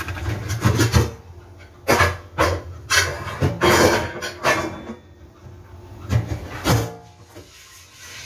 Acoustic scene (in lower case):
kitchen